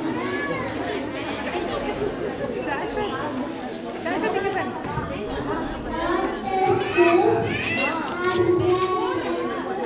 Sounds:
speech

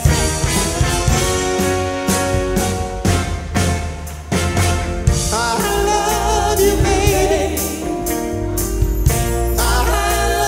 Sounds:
music, singing, soul music, gospel music

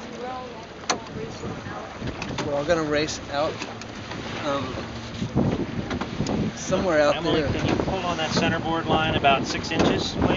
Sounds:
liquid, vehicle, sailboat, water vehicle, speech

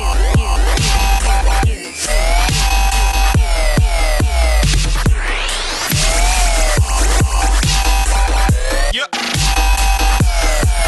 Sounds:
dubstep, music, electronic music

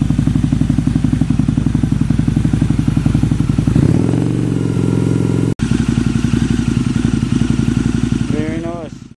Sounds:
speech

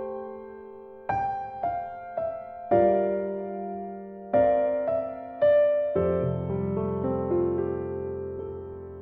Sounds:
music

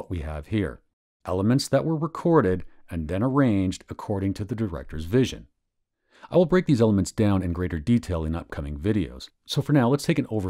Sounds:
speech

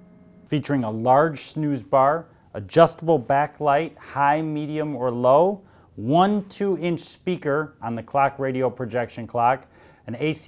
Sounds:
speech

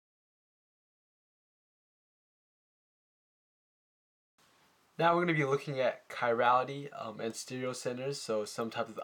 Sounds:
speech

